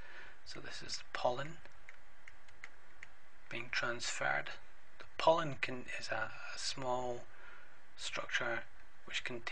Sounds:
speech

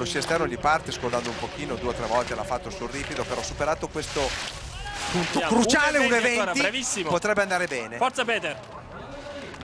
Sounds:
speech

